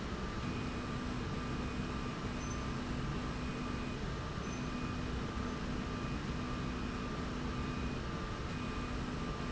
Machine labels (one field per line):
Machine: slide rail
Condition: normal